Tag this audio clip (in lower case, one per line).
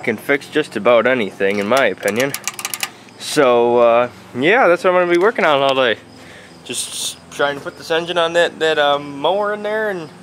speech